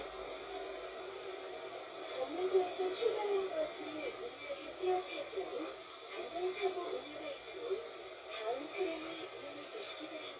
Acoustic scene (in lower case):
bus